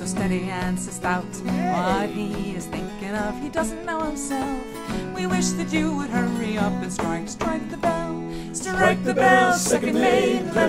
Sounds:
Music

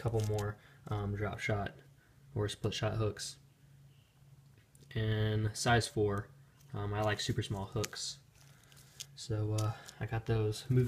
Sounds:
Speech, inside a small room

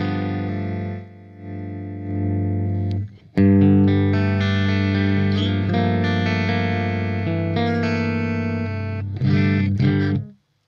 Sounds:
Guitar, Effects unit, Music, Musical instrument

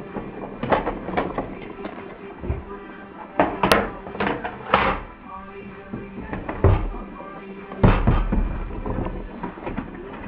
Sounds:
Music

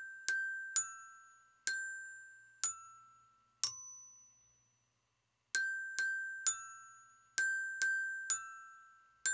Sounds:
Glockenspiel, Musical instrument, inside a small room, Music

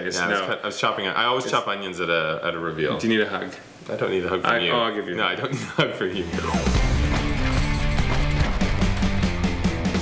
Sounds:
Speech, Music

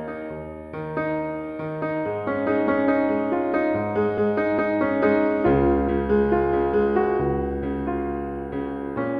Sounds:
Piano, Keyboard (musical)

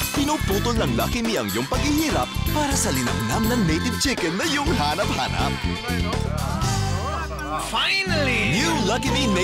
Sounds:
Speech, Music

